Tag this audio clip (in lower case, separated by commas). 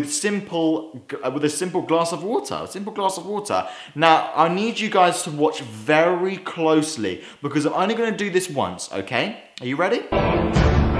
speech